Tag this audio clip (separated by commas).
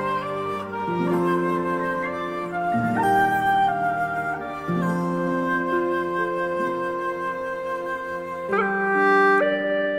Music, Flute